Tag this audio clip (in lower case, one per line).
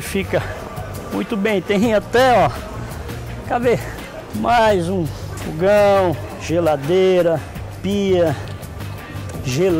music
speech